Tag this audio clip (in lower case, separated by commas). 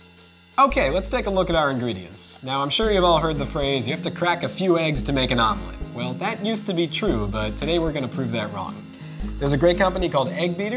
music, speech